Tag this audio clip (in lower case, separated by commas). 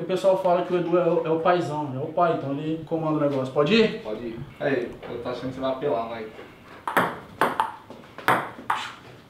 playing table tennis